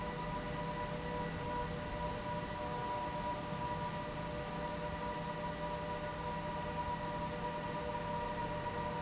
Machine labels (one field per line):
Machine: fan